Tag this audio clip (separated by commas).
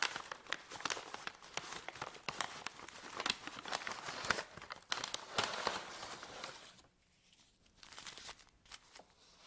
ripping paper